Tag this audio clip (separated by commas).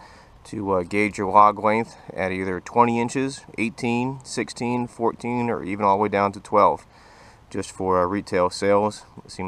Speech